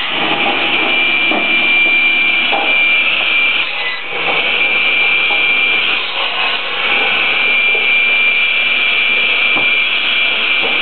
Knocking of wood on metal with the high pitched running of a saw